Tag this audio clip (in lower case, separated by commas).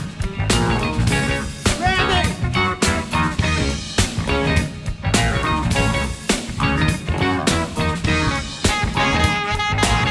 speech, music